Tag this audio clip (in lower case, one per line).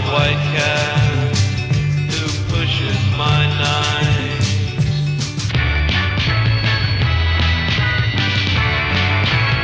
music